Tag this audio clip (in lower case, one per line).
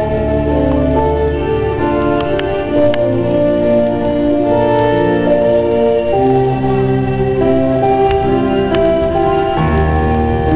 violin
musical instrument
music